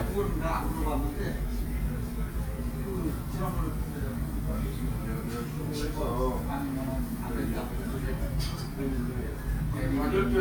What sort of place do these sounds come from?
restaurant